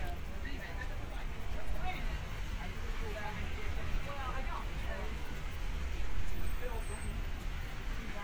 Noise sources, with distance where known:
person or small group talking, far

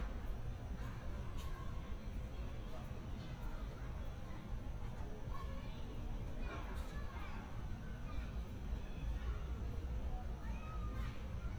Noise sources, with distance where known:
person or small group shouting, far

